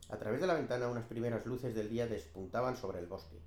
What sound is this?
speech